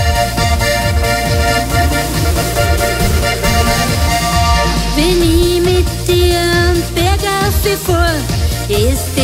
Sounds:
yodelling

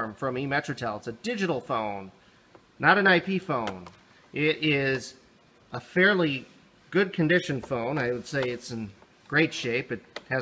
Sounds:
Speech

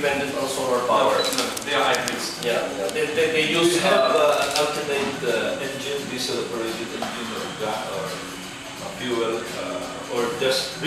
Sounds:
Speech

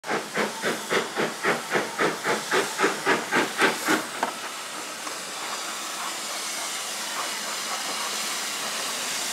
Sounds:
Vehicle, Hiss, Train

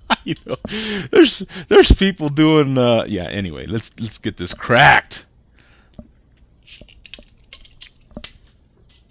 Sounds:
inside a small room, Speech

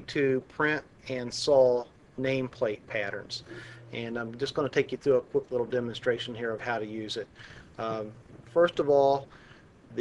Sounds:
Speech

